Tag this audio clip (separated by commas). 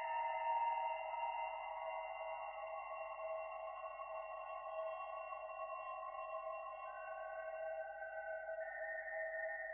Music, Sonar